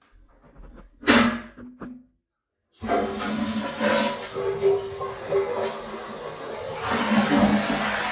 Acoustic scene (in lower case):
restroom